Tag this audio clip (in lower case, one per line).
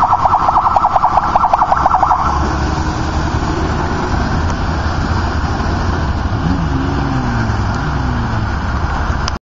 vehicle
motorcycle